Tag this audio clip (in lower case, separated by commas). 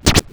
musical instrument, scratching (performance technique), music